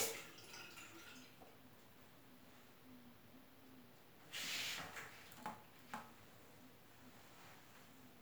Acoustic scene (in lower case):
restroom